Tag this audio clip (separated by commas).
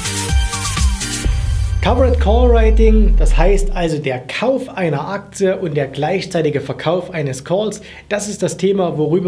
Music, Speech